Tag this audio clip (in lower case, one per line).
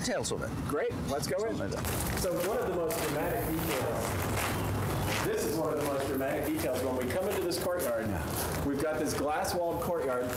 speech